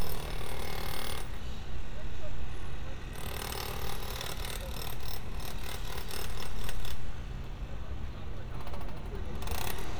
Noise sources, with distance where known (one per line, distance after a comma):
hoe ram